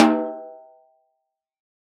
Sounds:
snare drum, percussion, drum, musical instrument, music

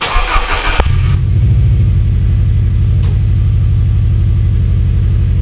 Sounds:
car, engine starting, engine, vehicle, motor vehicle (road)

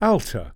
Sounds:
male speech, speech, human voice

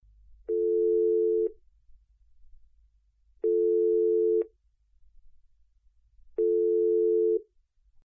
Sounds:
telephone, alarm

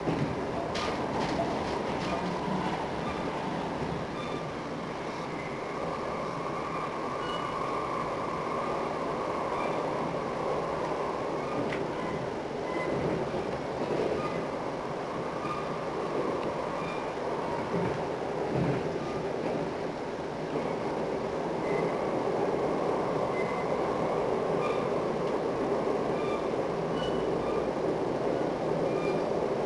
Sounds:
vehicle, rail transport, train

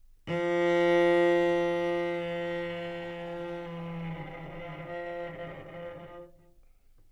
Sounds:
music, bowed string instrument, musical instrument

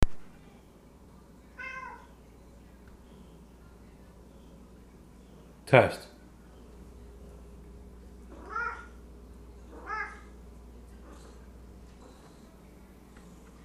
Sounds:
animal, pets, cat

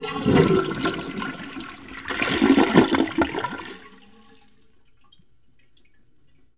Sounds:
toilet flush, water, home sounds, gurgling

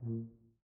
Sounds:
music, musical instrument, brass instrument

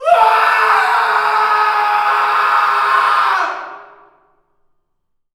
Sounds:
screaming, human voice

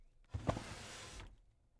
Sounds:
drawer open or close, home sounds

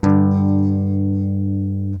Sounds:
plucked string instrument, electric guitar, strum, music, musical instrument, guitar

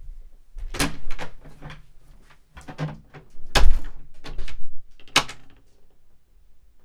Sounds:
slam, door, home sounds

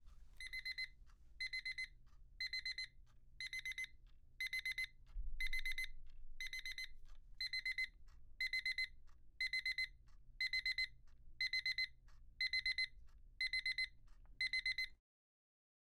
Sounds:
alarm

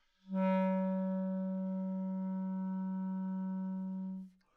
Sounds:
musical instrument, music, wind instrument

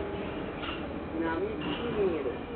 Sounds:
subway, vehicle, rail transport

